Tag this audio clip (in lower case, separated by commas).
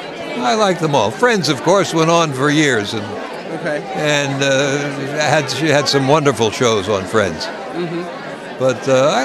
chatter, speech